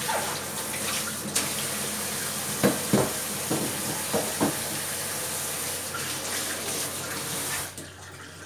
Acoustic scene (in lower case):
kitchen